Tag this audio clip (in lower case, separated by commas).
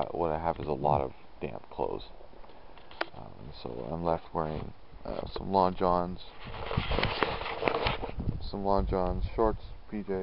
speech